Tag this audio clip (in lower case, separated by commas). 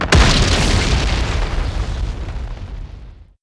boom, explosion